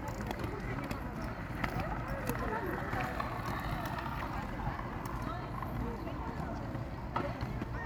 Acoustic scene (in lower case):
park